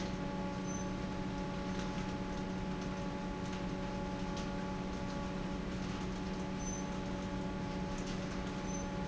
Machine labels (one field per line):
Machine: fan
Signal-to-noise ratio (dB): -6 dB